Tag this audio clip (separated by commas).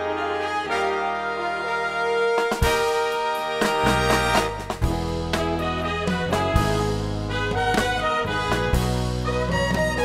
playing saxophone, Brass instrument, Saxophone, Trombone, Trumpet